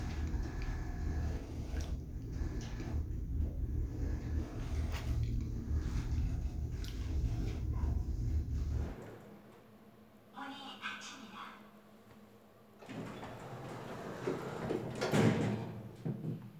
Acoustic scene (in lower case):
elevator